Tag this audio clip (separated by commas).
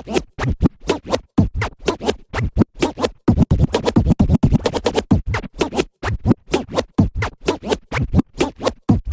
Music, Scratching (performance technique)